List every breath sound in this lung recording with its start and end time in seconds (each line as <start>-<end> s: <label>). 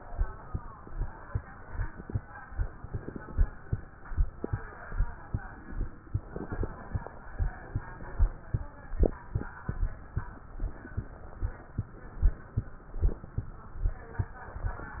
2.79-3.66 s: inhalation
2.79-3.66 s: crackles
6.19-7.06 s: inhalation
6.19-7.06 s: crackles